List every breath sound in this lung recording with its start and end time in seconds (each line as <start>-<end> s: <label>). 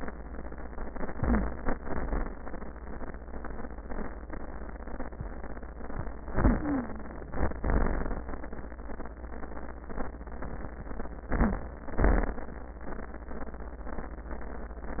1.11-1.72 s: inhalation
1.11-1.72 s: wheeze
1.73-2.34 s: exhalation
6.27-7.03 s: inhalation
6.27-7.03 s: wheeze
7.40-8.28 s: exhalation
11.28-12.04 s: inhalation
11.28-12.04 s: wheeze
12.03-12.57 s: exhalation